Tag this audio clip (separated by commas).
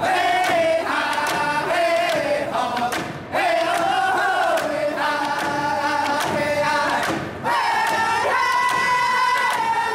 Choir, Male singing, Music